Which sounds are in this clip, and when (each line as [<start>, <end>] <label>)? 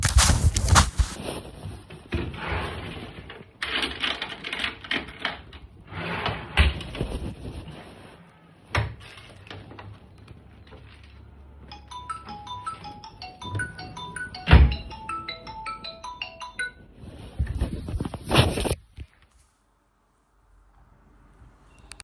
[2.61, 3.64] wardrobe or drawer
[6.49, 7.79] wardrobe or drawer
[11.93, 17.54] phone ringing
[14.38, 14.95] wardrobe or drawer